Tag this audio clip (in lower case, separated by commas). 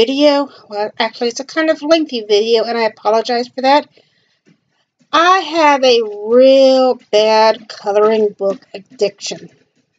speech